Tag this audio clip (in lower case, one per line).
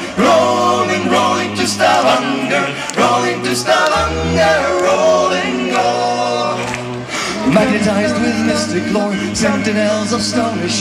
music